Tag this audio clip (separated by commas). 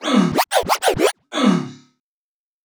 Music, Musical instrument, Scratching (performance technique)